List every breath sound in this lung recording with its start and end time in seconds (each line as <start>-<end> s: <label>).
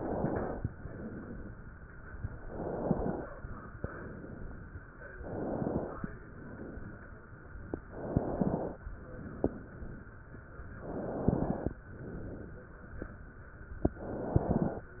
0.00-0.65 s: inhalation
0.72-1.56 s: exhalation
2.41-3.25 s: inhalation
3.77-4.61 s: exhalation
5.22-6.05 s: inhalation
6.26-7.10 s: exhalation
7.93-8.77 s: inhalation
9.11-9.94 s: exhalation
10.85-11.69 s: inhalation
11.97-12.81 s: exhalation
14.06-14.90 s: inhalation